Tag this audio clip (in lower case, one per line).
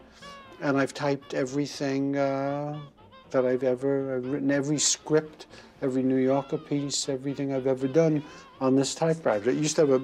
speech